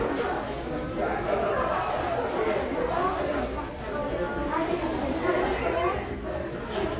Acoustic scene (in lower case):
crowded indoor space